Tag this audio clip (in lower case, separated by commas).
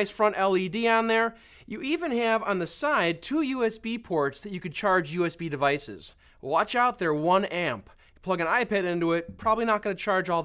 speech